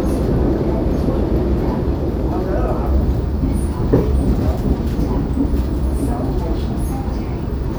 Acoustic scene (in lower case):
subway train